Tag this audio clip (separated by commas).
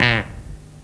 Fart